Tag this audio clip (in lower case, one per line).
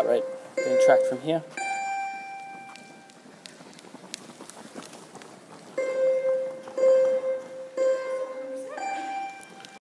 music
speech
bleep